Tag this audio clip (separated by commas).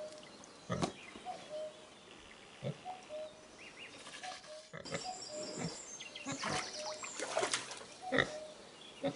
Bird vocalization, Bird, tweet